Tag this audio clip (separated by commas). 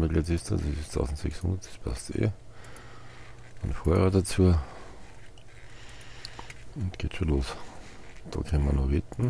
Speech